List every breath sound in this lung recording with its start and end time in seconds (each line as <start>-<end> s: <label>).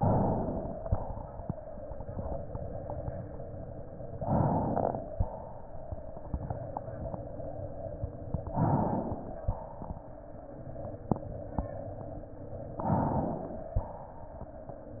0.00-0.84 s: inhalation
0.83-1.82 s: exhalation
4.11-5.11 s: crackles
4.16-5.12 s: inhalation
5.11-6.23 s: exhalation
8.46-9.40 s: inhalation
9.41-10.63 s: exhalation
12.73-13.74 s: inhalation